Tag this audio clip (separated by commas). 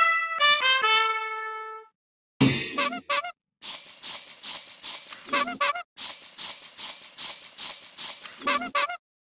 Music, Trumpet